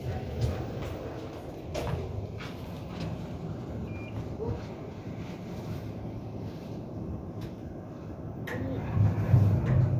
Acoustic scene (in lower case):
elevator